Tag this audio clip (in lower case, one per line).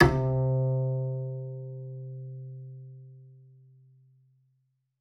music
musical instrument
bowed string instrument